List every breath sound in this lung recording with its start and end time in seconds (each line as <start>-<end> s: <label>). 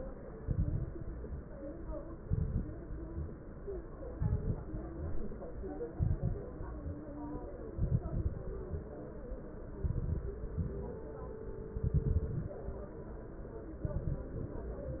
0.34-0.91 s: exhalation
0.34-0.91 s: crackles
2.20-2.77 s: exhalation
2.20-2.77 s: crackles
4.18-4.75 s: exhalation
4.18-4.75 s: crackles
5.95-6.51 s: exhalation
5.95-6.51 s: crackles
7.77-8.51 s: exhalation
7.77-8.51 s: crackles
9.82-10.32 s: exhalation
9.82-10.32 s: crackles
11.78-12.58 s: exhalation
11.78-12.58 s: crackles
13.85-14.57 s: exhalation
13.85-14.57 s: crackles